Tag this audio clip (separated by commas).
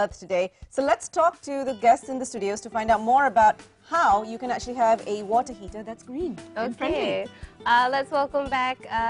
Music, Speech